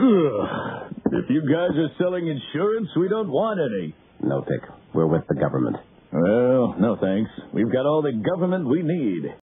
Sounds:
Speech

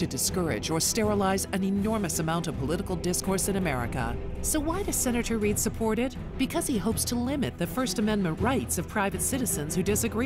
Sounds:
Speech, Music, Male speech, woman speaking

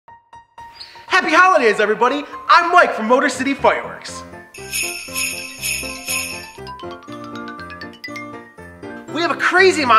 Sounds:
Ding-dong, Music, Speech

